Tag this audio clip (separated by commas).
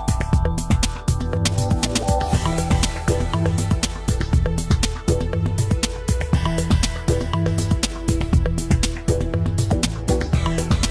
Music